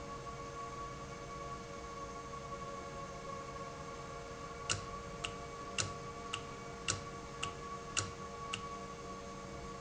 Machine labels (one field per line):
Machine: valve